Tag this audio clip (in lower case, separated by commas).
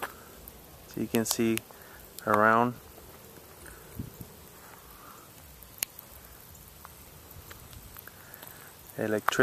outside, rural or natural, speech